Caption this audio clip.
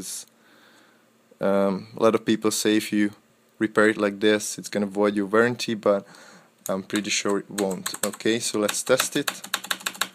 A man speaking followed by typing on a keyboard